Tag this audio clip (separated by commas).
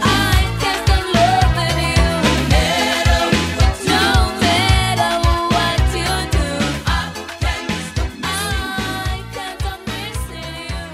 Music, Music of Africa